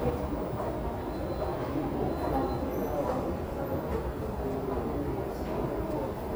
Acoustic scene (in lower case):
subway station